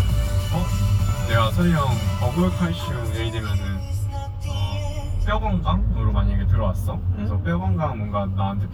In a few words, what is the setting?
car